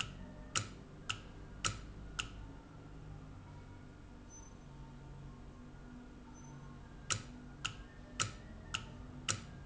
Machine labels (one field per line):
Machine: valve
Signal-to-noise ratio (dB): 6 dB